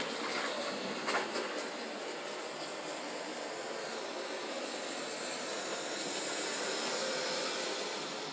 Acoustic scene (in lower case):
residential area